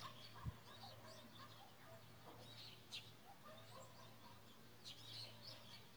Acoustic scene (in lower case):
park